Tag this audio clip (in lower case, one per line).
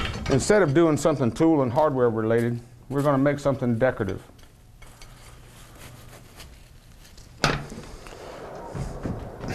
fire
speech